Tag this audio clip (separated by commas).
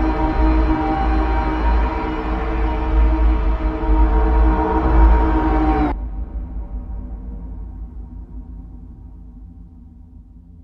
Music, Ambient music